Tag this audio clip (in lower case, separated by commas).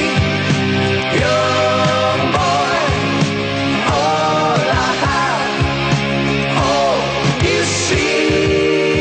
singing, music, independent music